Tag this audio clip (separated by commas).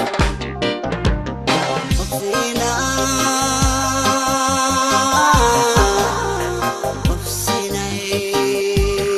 Music